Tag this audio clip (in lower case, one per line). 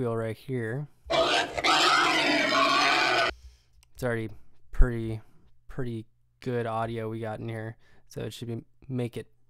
speech